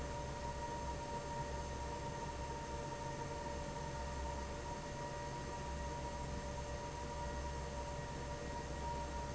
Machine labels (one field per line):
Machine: fan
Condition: normal